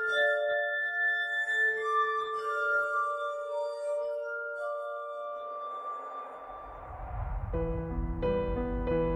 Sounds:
sound effect, music

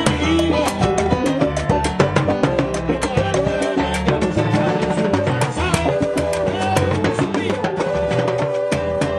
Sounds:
music, percussion, wood block

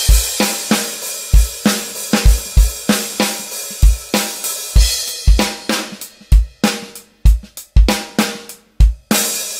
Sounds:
drum, musical instrument, drum kit

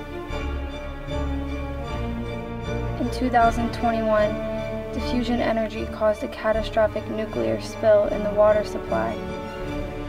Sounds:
speech, music

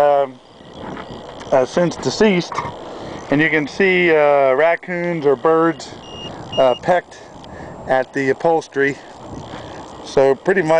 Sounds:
speech

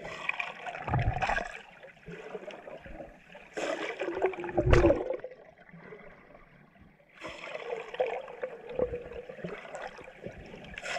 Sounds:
underwater bubbling

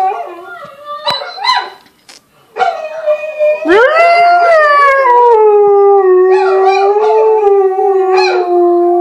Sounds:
yip, bow-wow

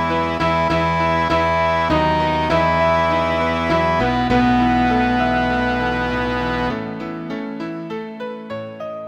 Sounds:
tender music, music

